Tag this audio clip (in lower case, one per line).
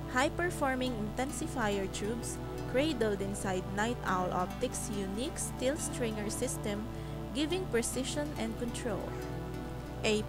speech
music